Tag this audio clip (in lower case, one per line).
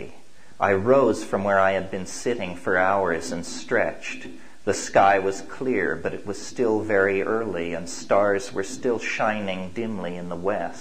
speech